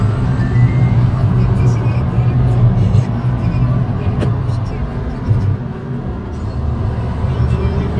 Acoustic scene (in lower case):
car